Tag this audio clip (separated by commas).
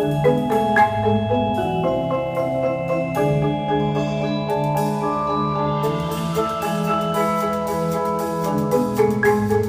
playing marimba, Music, Musical instrument, xylophone